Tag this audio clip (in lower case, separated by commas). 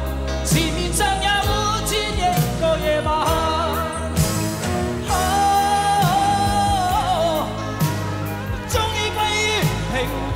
singing, music of asia, music